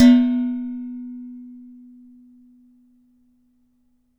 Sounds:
dishes, pots and pans, Domestic sounds

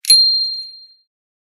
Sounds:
Bell, Vehicle, Alarm, Bicycle, Bicycle bell

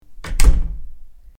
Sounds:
Door, Slam, home sounds

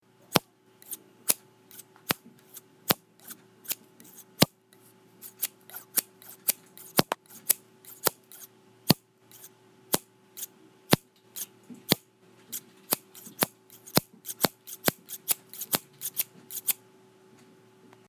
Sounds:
Scissors, home sounds

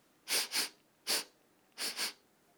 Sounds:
Respiratory sounds

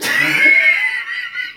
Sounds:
Laughter, Human voice

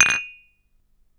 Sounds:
dishes, pots and pans, Domestic sounds

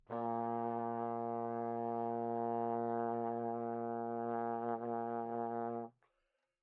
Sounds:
Musical instrument, Brass instrument, Music

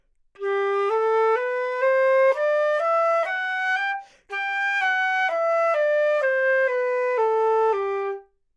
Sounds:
Music, Musical instrument, Wind instrument

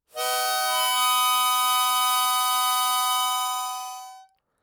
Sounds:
Music, Musical instrument, Harmonica

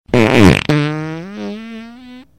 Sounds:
Fart

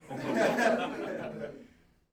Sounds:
Laughter, Chuckle, Human voice

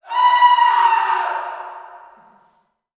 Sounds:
Human voice, Screaming

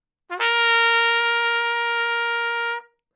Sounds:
Music, Trumpet, Musical instrument, Brass instrument

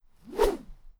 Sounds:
swoosh

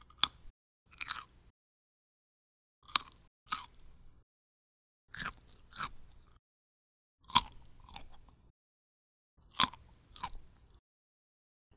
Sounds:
mastication

